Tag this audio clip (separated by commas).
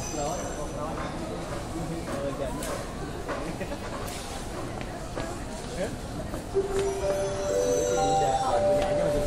Railroad car, Train, metro, Rail transport